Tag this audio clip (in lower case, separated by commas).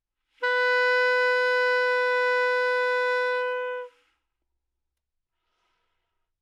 music, musical instrument, wind instrument